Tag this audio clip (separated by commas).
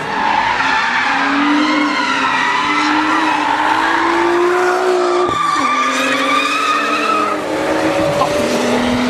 Skidding, Race car, Vehicle, Tire squeal, Car